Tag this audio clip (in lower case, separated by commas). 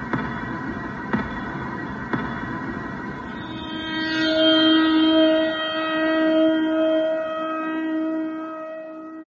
music